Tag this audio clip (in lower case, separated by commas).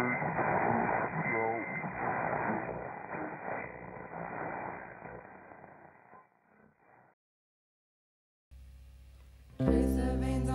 music, inside a small room, speech, singing